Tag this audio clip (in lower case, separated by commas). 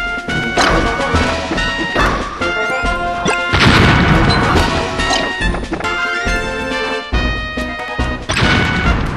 music